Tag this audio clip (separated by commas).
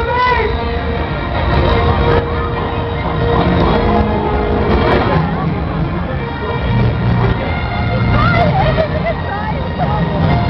Speech, Music